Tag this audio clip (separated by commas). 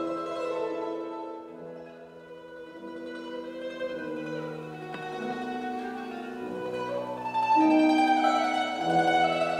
Musical instrument, Piano, Music, Mandolin